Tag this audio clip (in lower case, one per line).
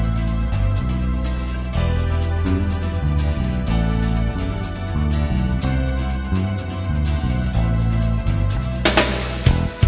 music